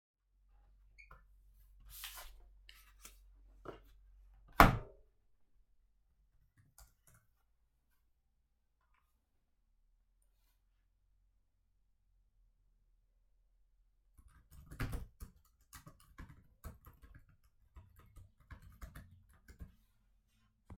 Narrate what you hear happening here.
I opened the notebook. I unlocked the notebook and started typing.